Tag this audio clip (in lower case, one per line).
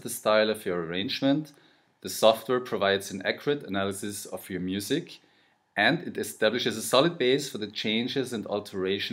speech